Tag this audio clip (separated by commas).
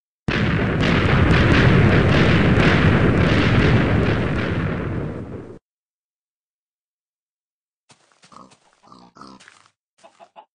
Gunshot, Sound effect